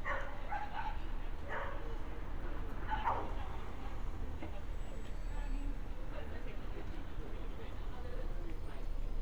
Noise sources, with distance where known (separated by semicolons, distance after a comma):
person or small group talking, far; dog barking or whining, near